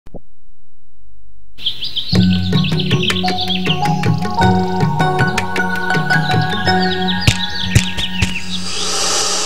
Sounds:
Music, Speech

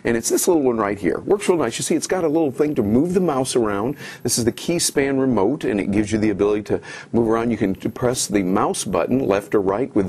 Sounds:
Speech

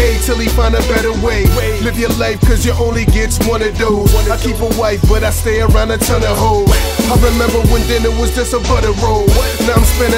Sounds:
Music

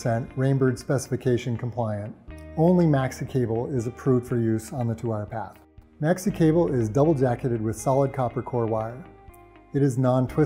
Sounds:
Music, Speech

